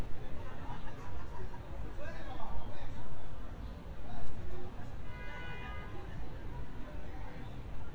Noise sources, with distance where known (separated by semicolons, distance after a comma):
background noise